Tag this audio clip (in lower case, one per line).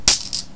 coin (dropping)
home sounds